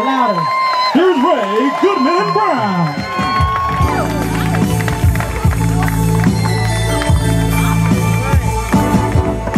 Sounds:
music, speech

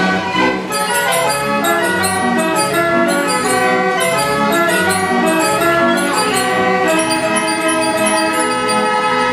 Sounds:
inside a large room or hall, music

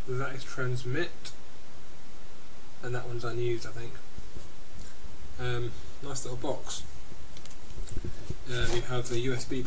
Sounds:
speech

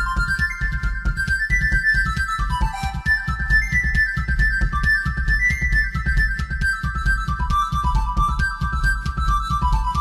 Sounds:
music, ringtone

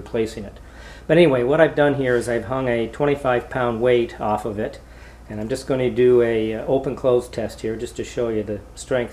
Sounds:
speech

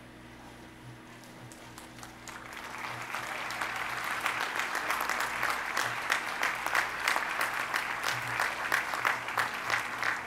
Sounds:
people clapping, applause

